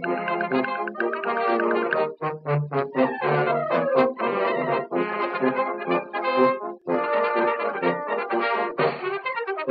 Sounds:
Music

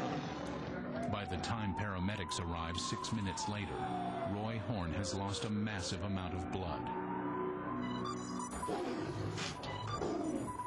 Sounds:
Music, Speech

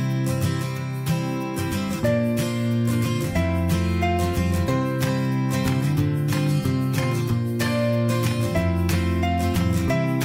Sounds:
Music

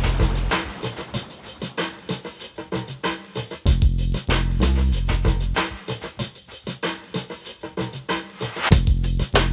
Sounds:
Music, Drum machine

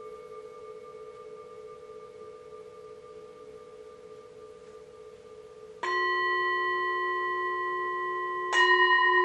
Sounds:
Singing bowl

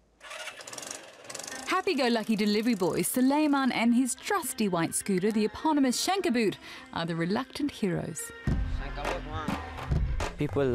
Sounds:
Music, Speech

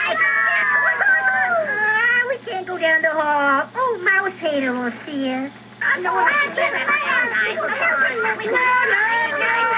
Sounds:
Speech

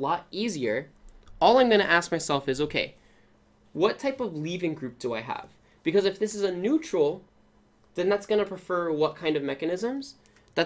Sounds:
Speech

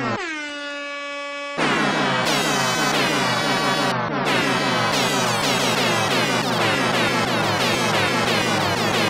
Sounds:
Music, truck horn

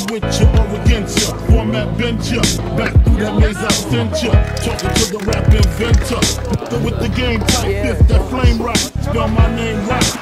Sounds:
Speech, Music

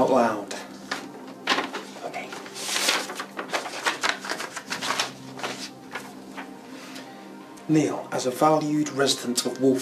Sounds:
Speech, Music, inside a small room

